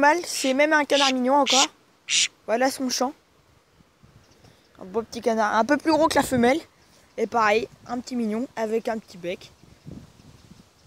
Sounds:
speech

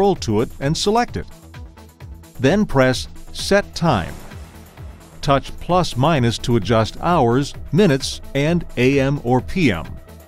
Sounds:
speech
music

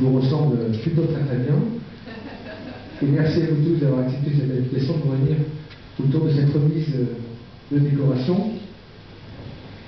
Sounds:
speech

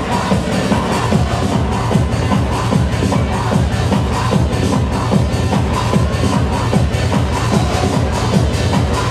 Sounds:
music
techno
electronic music

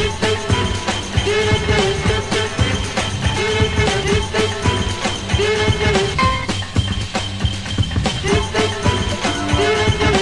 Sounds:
electronica
music

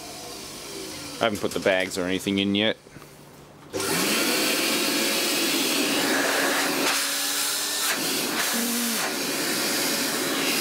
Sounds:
vacuum cleaner
speech

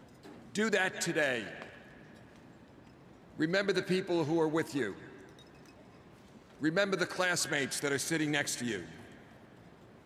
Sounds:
man speaking
monologue
speech

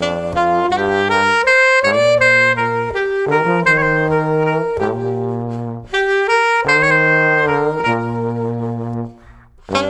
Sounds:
brass instrument
music
trombone
trumpet
saxophone

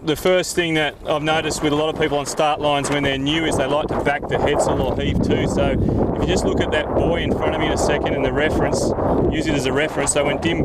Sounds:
boat
speech

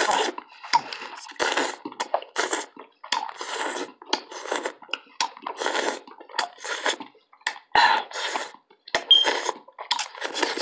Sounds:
people slurping

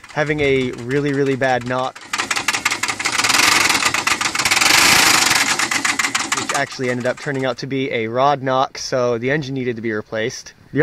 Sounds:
engine
speech
vehicle

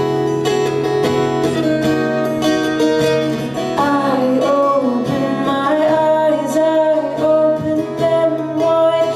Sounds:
female singing
music

